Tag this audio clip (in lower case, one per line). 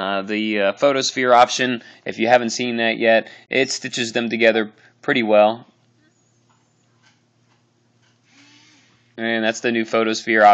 inside a small room
speech